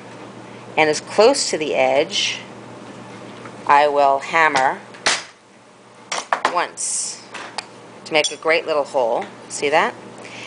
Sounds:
speech

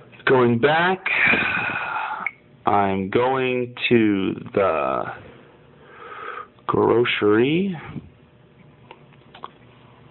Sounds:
speech

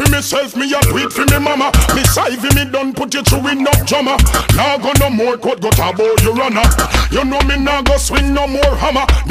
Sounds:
music

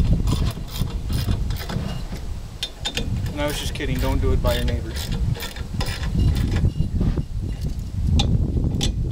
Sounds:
speech

